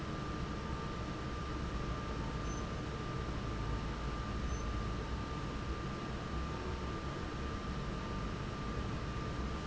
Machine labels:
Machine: fan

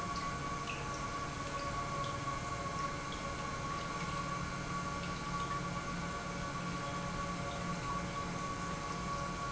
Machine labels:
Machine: pump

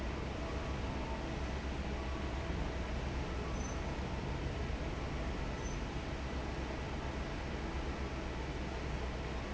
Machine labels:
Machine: fan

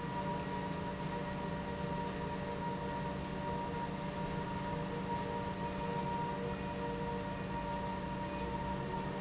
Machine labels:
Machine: pump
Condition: normal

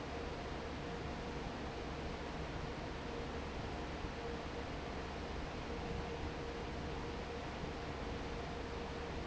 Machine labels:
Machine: fan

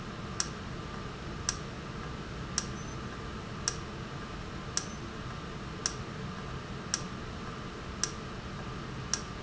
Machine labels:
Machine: valve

